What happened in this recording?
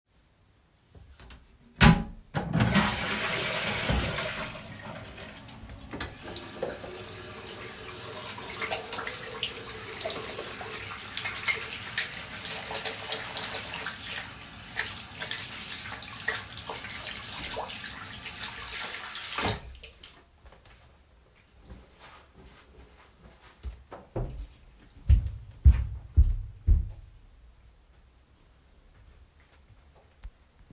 I heard the doorbell ringing and walked toward the entrance. I opened the door to check outside and then closed it before walking away.